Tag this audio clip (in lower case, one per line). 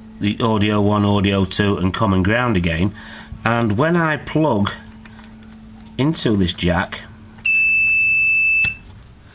inside a small room
smoke detector
speech